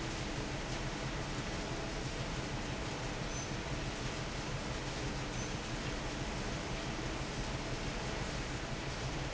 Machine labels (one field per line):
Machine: fan